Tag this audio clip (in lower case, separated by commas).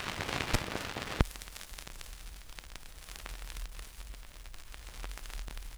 crackle